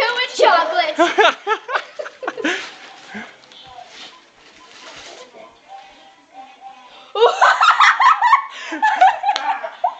A child speaks, and adult male laughs, a child laughs, and music plays in the background